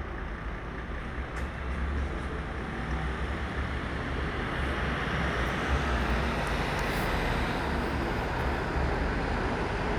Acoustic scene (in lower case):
street